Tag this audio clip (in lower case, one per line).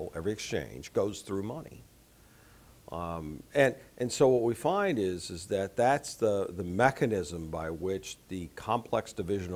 speech